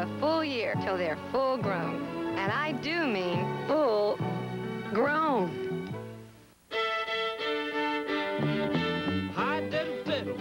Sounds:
speech
music

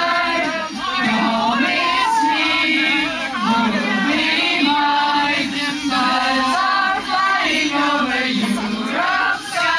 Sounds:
female singing

